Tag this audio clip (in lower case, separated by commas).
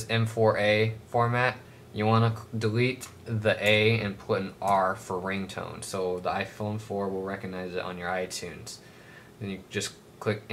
speech